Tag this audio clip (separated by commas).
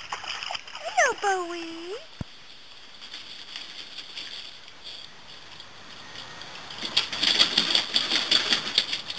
Speech